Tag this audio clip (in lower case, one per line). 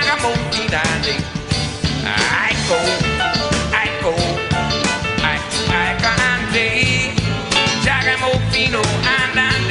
blues
independent music
music